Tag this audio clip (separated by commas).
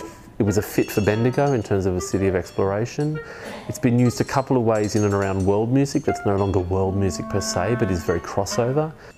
Speech, Music